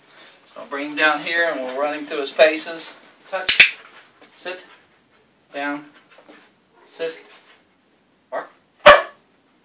A man talking, then a dog barks